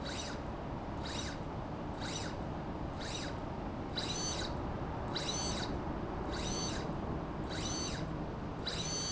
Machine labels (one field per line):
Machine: slide rail